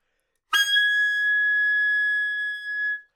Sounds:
Musical instrument, woodwind instrument, Music

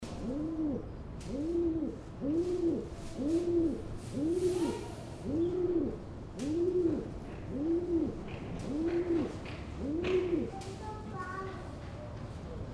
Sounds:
Bird, Wild animals, Animal

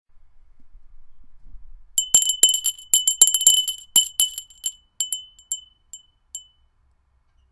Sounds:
Bell

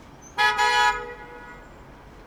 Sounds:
Motor vehicle (road), car horn, Alarm, Car, Vehicle, roadway noise

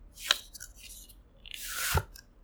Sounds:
Domestic sounds

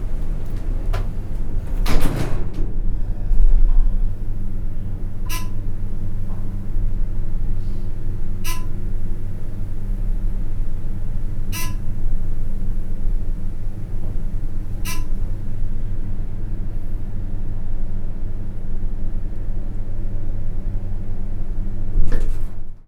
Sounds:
Alarm

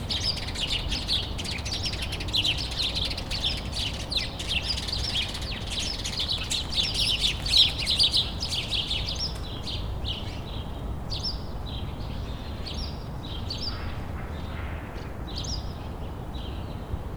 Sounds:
Bird, tweet, Bird vocalization, Animal, Wild animals

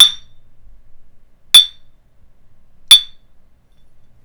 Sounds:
Chink, Glass

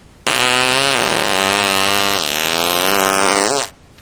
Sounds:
Fart

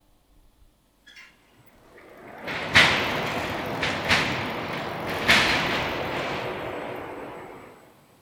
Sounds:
Mechanisms

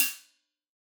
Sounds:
Percussion, Musical instrument, Music, Hi-hat, Cymbal

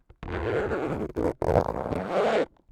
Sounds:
home sounds, Zipper (clothing)

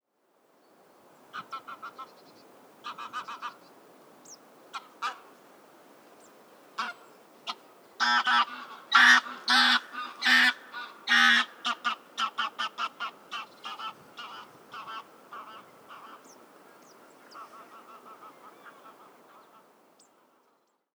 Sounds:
Animal, Fowl, Bird, Wild animals, bird call, livestock

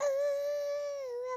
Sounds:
Singing, Human voice

